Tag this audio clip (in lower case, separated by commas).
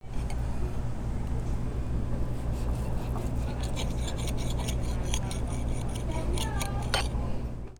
cutlery, home sounds